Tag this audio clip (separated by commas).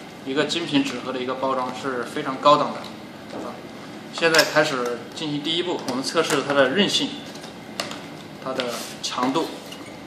Speech